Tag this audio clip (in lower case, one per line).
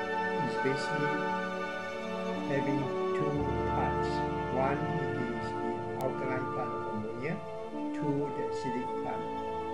music
speech